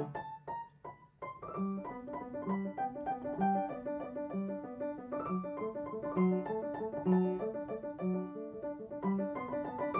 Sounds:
music, piano, musical instrument

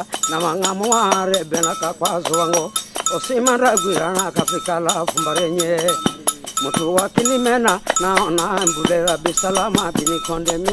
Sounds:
male singing, music

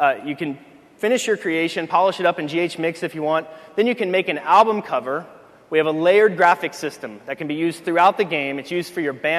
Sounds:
speech

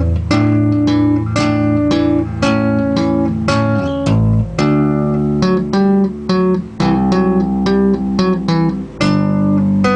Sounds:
musical instrument, plucked string instrument, electric guitar, guitar, music

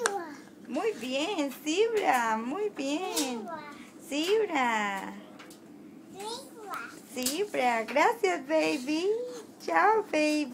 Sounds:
child speech, inside a small room, speech

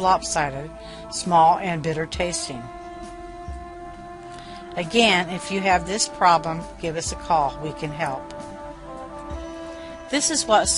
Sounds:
speech, music

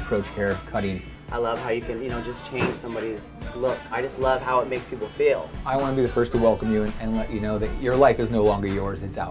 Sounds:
speech, music

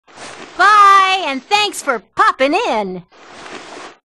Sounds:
speech

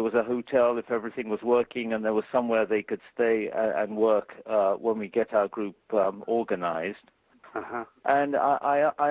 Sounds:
conversation, telephone, speech

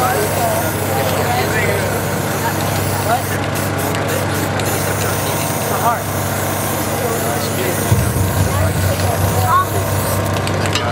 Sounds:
lawn mower

